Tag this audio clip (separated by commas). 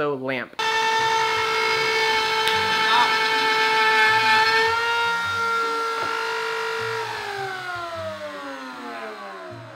Speech, inside a large room or hall, Music